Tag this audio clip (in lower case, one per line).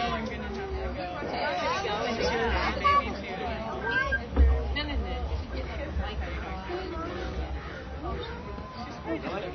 chatter
speech